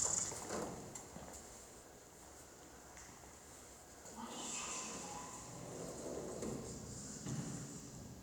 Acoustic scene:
elevator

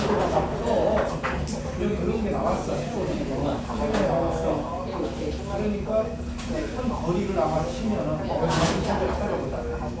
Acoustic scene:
crowded indoor space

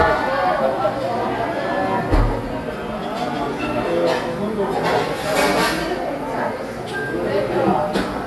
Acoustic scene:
cafe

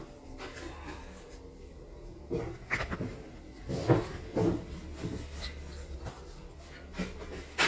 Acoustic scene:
elevator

